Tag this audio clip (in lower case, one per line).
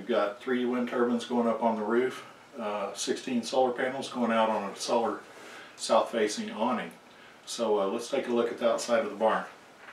speech